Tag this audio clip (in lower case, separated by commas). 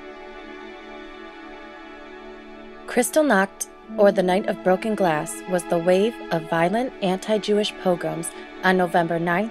speech, music